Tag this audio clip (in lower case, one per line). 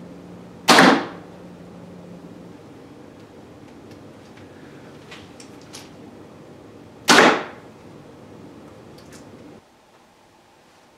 arrow